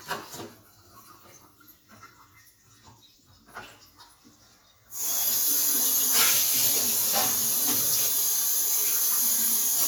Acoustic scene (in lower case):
kitchen